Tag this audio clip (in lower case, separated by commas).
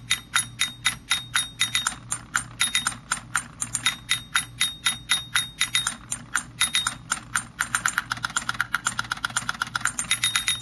music